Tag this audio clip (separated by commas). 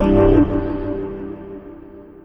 Music, Organ, Musical instrument, Keyboard (musical)